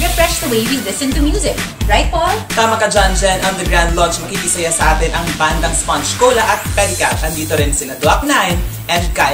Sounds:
music
speech
background music

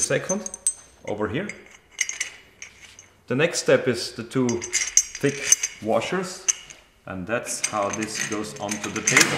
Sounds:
inside a small room
tools
speech

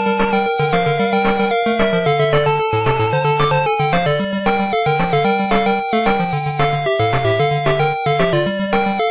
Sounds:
music
soundtrack music

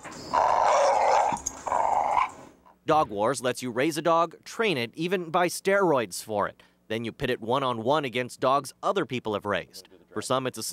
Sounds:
speech
bow-wow

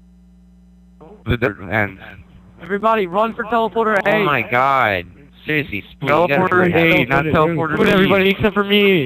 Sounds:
speech

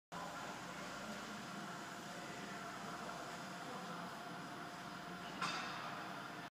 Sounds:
engine

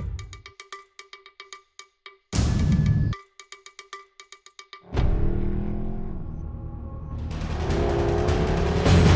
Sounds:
vehicle
car
music

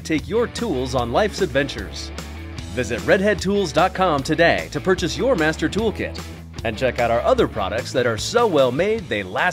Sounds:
music
speech

